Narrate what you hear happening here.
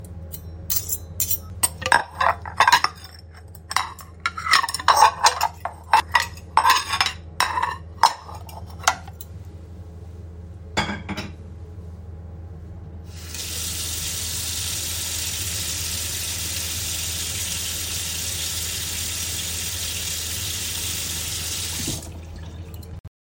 I was setting up my tale for dinner and then a washed my hands.